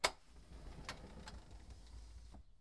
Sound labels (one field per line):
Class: window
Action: opening